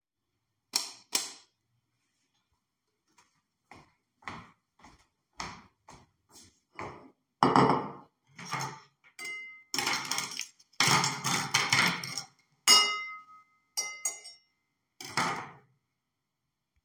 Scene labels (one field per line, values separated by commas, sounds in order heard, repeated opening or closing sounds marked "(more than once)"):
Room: kitchen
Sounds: light switch, footsteps, cutlery and dishes